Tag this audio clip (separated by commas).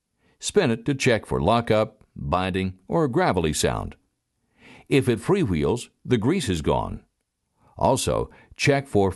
Speech, monologue